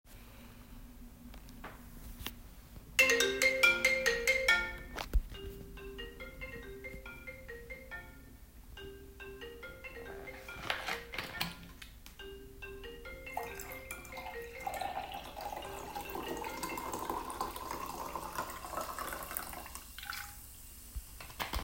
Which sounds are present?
phone ringing, running water